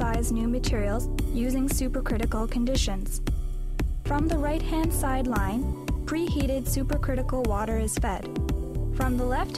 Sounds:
Music, Speech

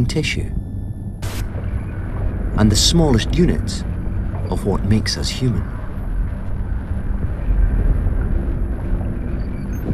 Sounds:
Speech

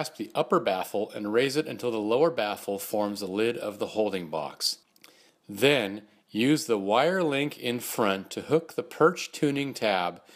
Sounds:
Speech

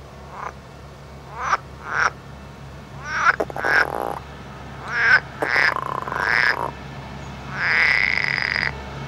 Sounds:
Animal

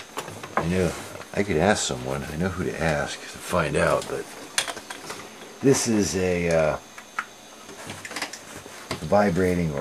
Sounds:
Speech

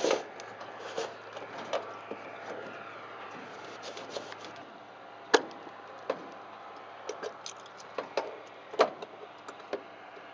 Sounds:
Aircraft, Vehicle

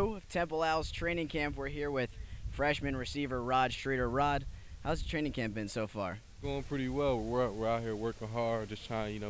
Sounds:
Speech

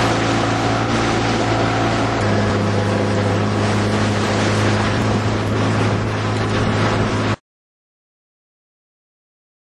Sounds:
Motorboat, Wind noise (microphone), Boat, Vehicle

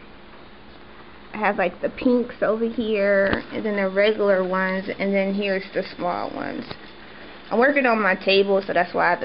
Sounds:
inside a small room, Speech

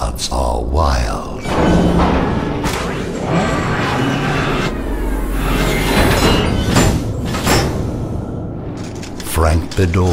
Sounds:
Speech

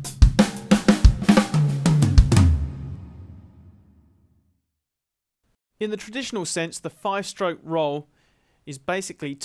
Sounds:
Bass drum, Roll, Music, Drum kit, Musical instrument, Drum, Speech

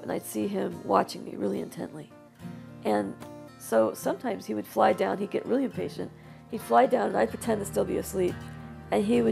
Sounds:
Speech, Music

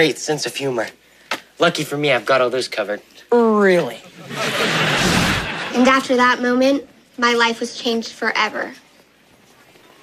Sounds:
Speech

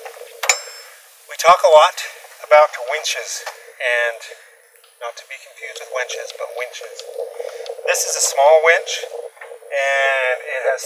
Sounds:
Speech

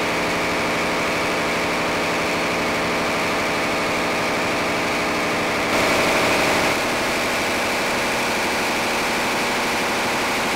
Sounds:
Heavy engine (low frequency), Engine, Idling

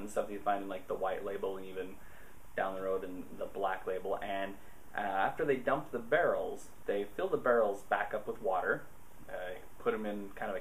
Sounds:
Speech

